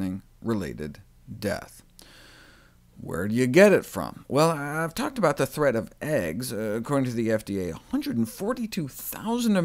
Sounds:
Speech

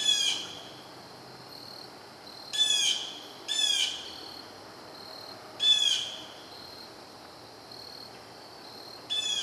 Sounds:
Animal, Bird

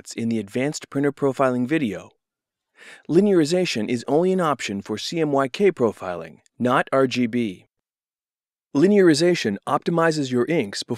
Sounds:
Speech

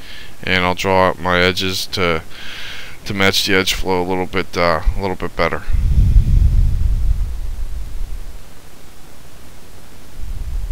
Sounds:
Speech

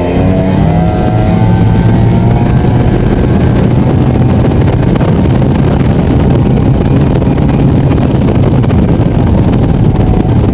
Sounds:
Vehicle, Motorboat

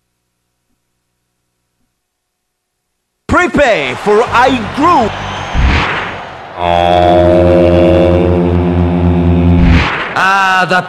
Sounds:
Music, Speech

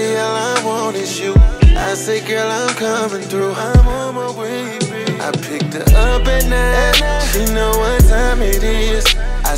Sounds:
Music

